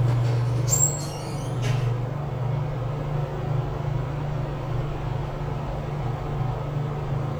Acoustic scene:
elevator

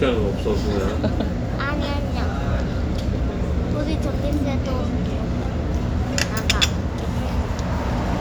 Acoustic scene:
restaurant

